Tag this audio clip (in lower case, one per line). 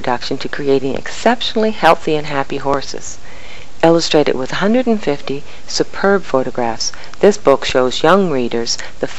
speech